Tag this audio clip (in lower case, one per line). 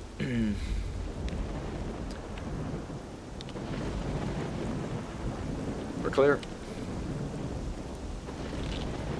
speech